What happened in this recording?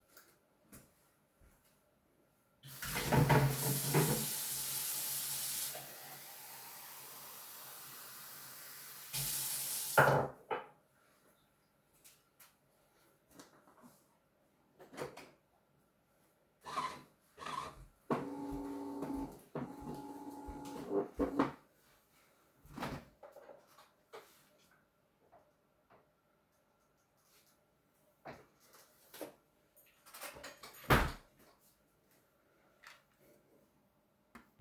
Put some plastic container in the sink, poured some water into a glass, turned on coffeé machine, opned and closed fridge